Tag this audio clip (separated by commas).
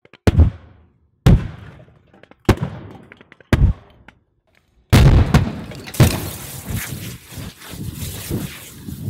lighting firecrackers